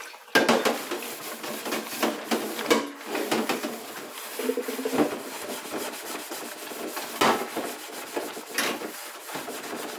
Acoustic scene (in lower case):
kitchen